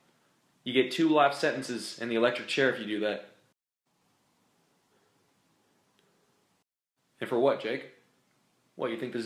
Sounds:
inside a small room
speech

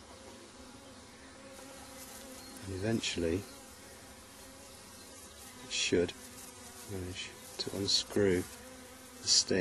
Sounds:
speech
insect
bee or wasp

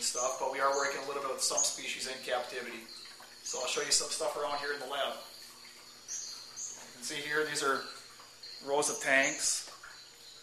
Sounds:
speech

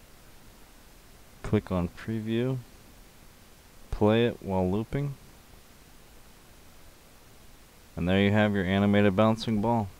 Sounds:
speech

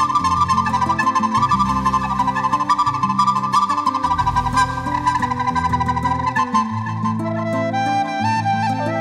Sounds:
playing flute
wind instrument
flute

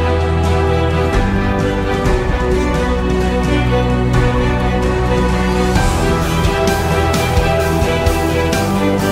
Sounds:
music

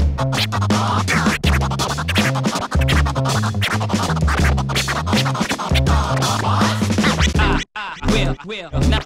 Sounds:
disc scratching

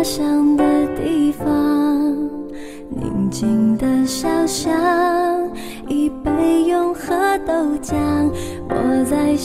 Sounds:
music

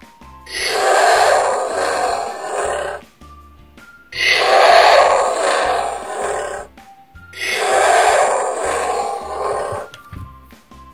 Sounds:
dinosaurs bellowing

